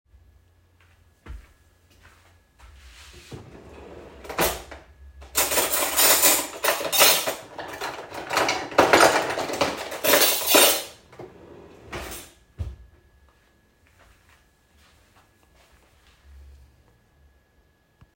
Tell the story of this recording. I was in the kitchen and walked to a drawer. I opened it, moved the cutlery inside, and closed the drawer. Then I walked back toward the iPad.